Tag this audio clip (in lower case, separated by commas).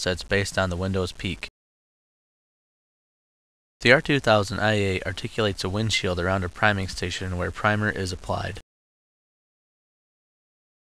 speech